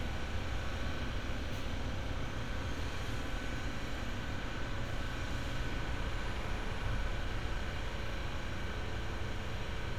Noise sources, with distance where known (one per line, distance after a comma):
large-sounding engine